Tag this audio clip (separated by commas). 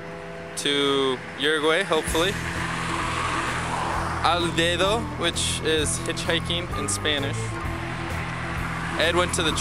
Music, Speech, outside, urban or man-made